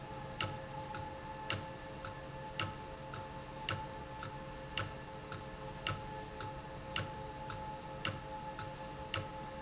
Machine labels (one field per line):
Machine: valve